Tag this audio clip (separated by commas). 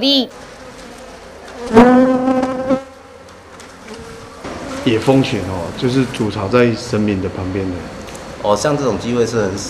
etc. buzzing